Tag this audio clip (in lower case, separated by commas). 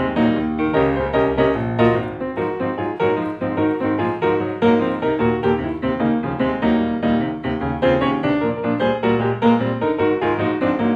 music, blues